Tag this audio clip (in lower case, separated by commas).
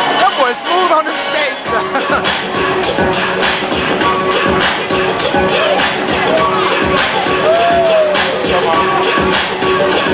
speech, music